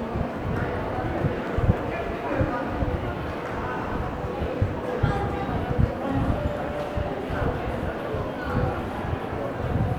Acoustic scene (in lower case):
crowded indoor space